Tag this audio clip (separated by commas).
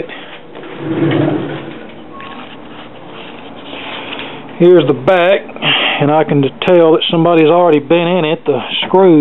Speech